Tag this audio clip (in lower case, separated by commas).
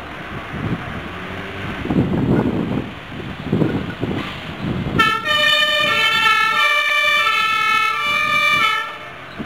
engine, vehicle